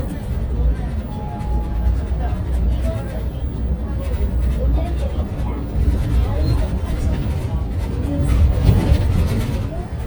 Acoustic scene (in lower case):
bus